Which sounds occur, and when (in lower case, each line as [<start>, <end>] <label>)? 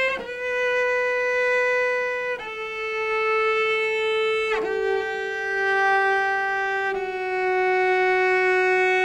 [0.01, 9.04] music